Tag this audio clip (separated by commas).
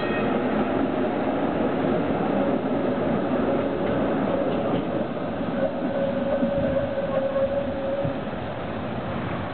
Vehicle